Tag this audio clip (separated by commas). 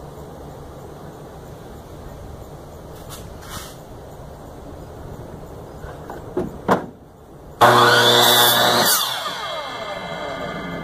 Tools, Power tool